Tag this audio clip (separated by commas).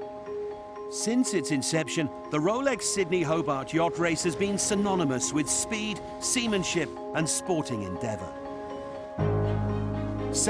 Music, Speech